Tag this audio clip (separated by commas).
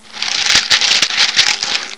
Music, Rattle (instrument), Musical instrument, Percussion